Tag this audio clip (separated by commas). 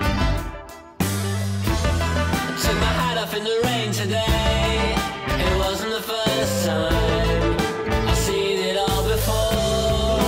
Rock music, Music